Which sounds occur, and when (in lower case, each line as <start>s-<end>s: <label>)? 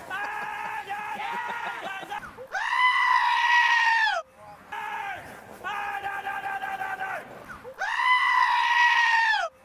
0.0s-2.6s: rooster
0.0s-9.6s: background noise
0.0s-2.2s: screaming
0.7s-2.5s: male speech
2.5s-4.2s: screaming
4.3s-5.2s: male speech
4.7s-5.3s: screaming
5.6s-7.2s: male speech
7.4s-7.7s: rooster
7.7s-9.5s: screaming